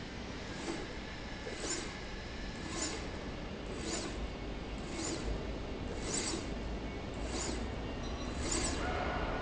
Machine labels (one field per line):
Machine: slide rail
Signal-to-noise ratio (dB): -6 dB